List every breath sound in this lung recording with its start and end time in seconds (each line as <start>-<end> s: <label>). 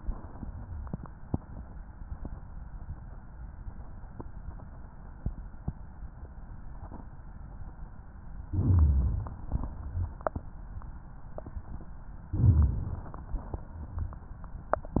8.41-9.48 s: inhalation
9.49-10.56 s: exhalation
12.27-13.34 s: inhalation
13.35-14.42 s: exhalation